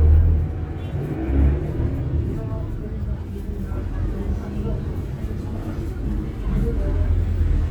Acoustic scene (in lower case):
bus